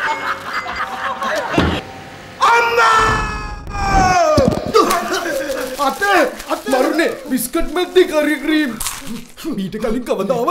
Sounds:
speech

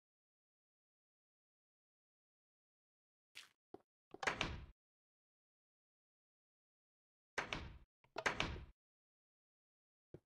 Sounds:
door

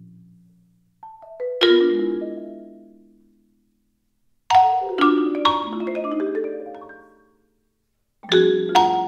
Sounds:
marimba, glockenspiel, playing marimba, mallet percussion

